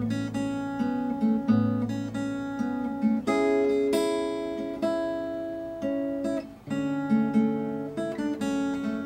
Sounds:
Strum, Music, Musical instrument, Acoustic guitar, Guitar, Plucked string instrument

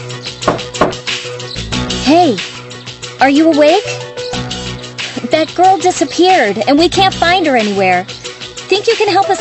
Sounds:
Speech, Music

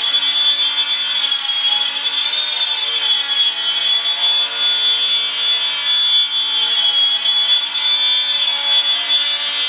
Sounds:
Vehicle

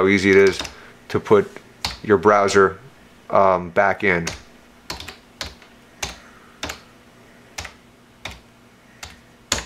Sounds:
Computer keyboard

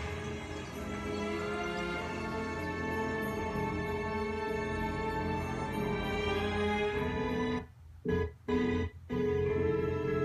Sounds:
Music

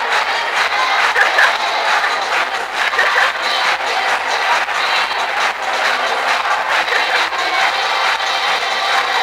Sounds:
Music

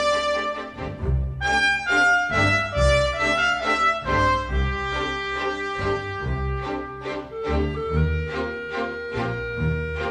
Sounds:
Music

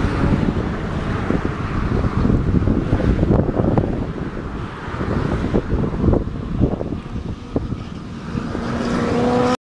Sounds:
Motorcycle, Vehicle, Wind

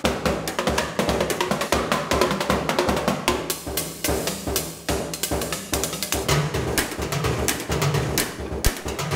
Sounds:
inside a large room or hall, Music

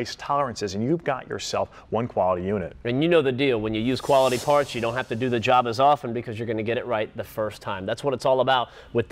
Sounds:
Speech

